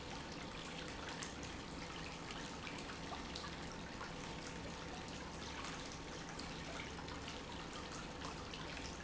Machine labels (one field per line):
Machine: pump